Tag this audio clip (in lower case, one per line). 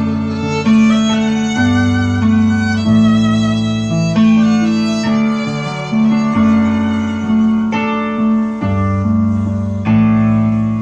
music
musical instrument
fiddle